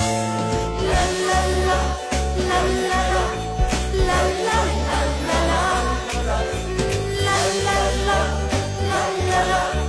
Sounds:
Christian music, Music, Singing, Christmas music

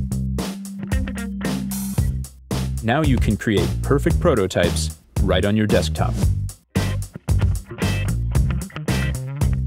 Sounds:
Speech, Music

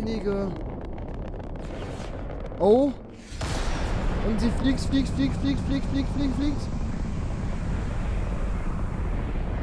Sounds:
missile launch

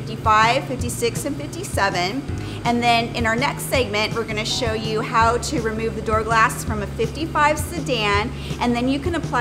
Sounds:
Speech, Music

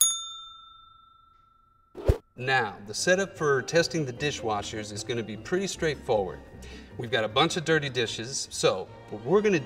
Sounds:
Music, Speech

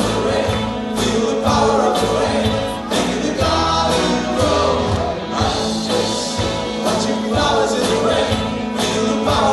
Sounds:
Music

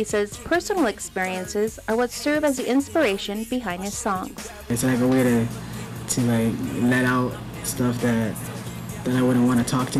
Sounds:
Music, Speech

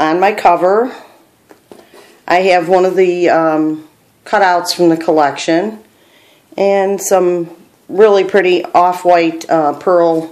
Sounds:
Speech

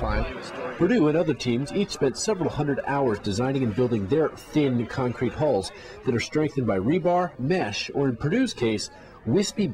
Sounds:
Water vehicle, Speech, canoe

